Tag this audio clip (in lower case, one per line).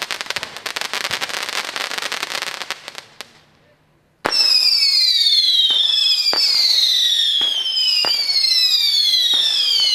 fireworks
speech